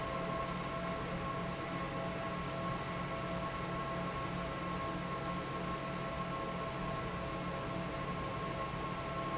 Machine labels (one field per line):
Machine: fan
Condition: normal